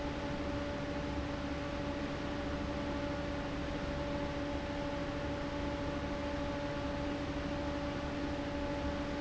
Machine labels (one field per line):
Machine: fan